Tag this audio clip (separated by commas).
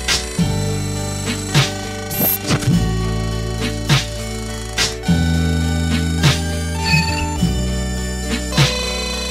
Music